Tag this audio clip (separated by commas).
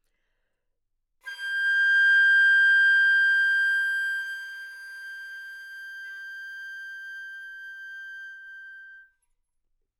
woodwind instrument, Music, Musical instrument